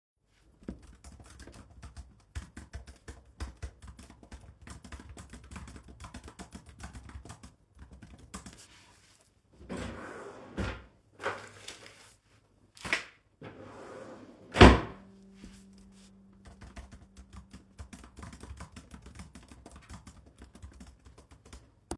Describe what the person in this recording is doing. I was typing on my keyboard. After that I took some papers out of a drawer I had next to my table, I closed it after and continued typing.